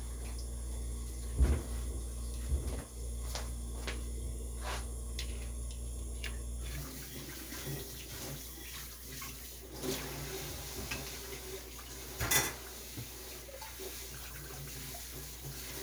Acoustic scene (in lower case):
kitchen